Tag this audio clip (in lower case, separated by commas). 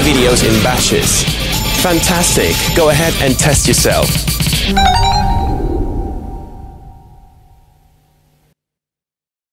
music, speech